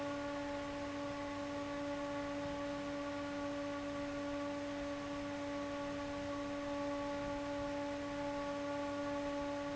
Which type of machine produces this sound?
fan